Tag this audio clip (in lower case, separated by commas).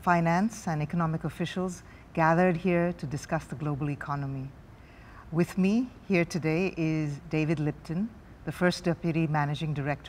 speech